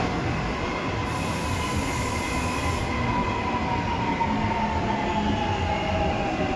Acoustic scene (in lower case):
subway station